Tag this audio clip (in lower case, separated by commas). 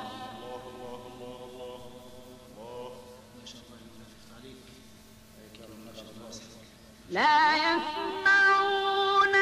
chant